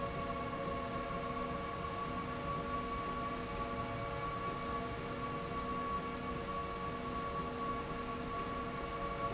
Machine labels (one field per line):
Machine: slide rail